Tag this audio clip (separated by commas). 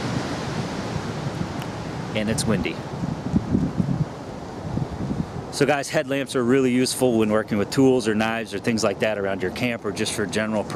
Wind, Speech